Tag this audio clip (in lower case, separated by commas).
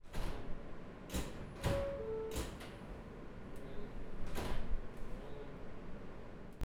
vehicle, subway, rail transport